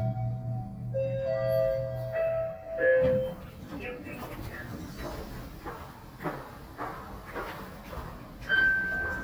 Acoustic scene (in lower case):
elevator